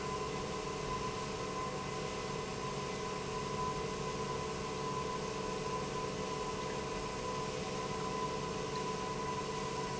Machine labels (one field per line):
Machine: pump